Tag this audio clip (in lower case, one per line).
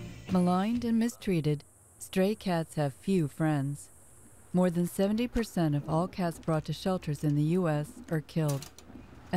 speech